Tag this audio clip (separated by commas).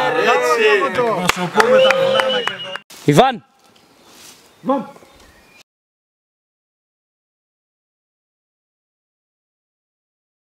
Speech, outside, rural or natural, Silence